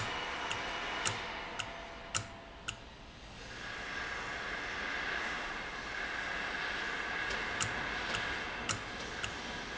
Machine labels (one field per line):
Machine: valve